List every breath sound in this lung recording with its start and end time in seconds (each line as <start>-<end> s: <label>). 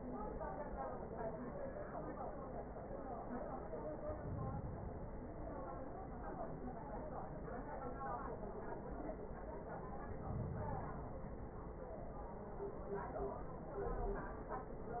3.80-5.30 s: inhalation
9.64-11.14 s: inhalation